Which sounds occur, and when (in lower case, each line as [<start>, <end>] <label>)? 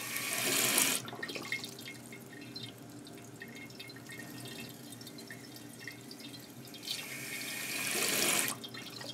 [0.00, 9.13] mechanisms
[0.00, 9.13] mechanisms
[0.00, 9.13] trickle
[1.03, 2.10] gurgling
[8.60, 9.13] gurgling